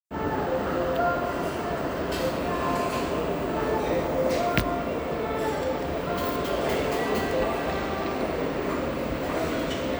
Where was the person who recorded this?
in a restaurant